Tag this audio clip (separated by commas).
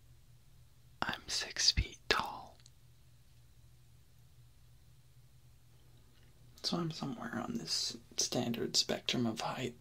Speech